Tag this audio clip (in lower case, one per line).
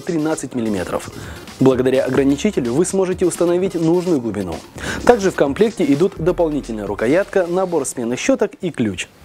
speech
music